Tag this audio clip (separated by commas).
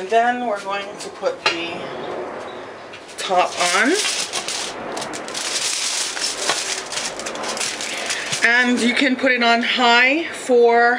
Crackle